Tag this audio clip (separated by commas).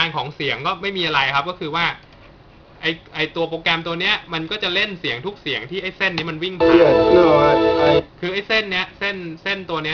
Music, Speech